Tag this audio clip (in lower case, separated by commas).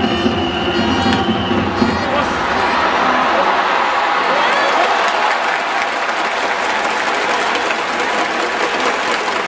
music, crowd, outside, urban or man-made